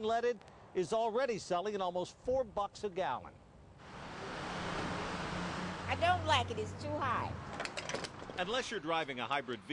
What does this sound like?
A man speaking followed by a vehicle running and a women and man speaking